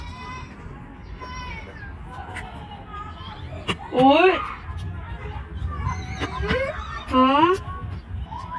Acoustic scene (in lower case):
park